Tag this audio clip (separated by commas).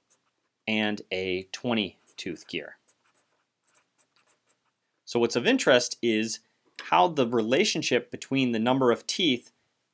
Speech, Writing